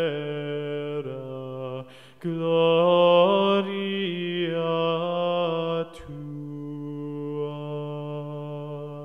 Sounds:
Mantra

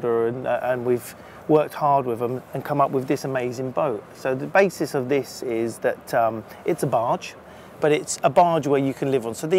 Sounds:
Speech

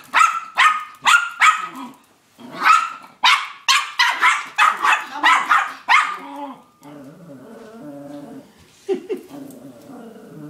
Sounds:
dog bow-wow, Bow-wow, Dog, Speech, Domestic animals, Animal

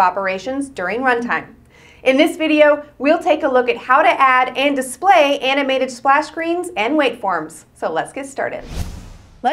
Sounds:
Speech

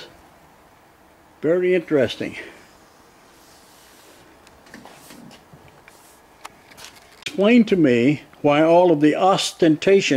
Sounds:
Speech

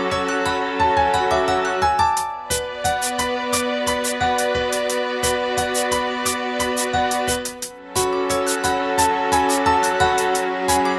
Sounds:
Music, Background music

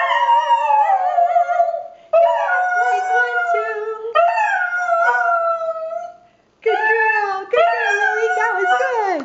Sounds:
Animal, Dog, canids, Speech, inside a small room, Domestic animals

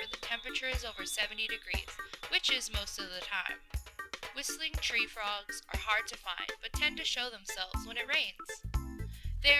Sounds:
Speech, Music

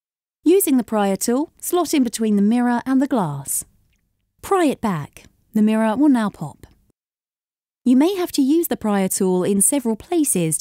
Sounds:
Speech

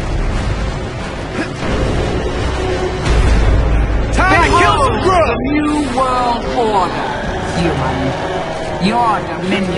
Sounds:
Music, Speech

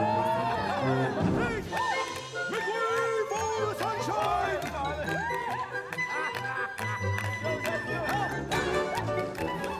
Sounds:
Speech, Music

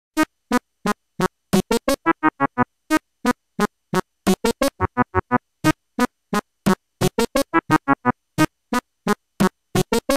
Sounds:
Music

